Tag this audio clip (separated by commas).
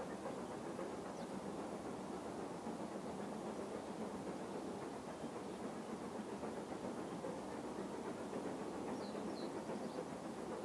Vehicle, Train, Rail transport